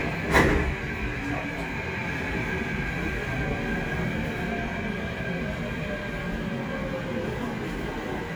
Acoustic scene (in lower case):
subway train